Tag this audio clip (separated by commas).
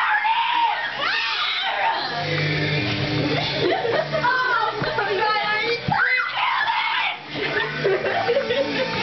Music, Speech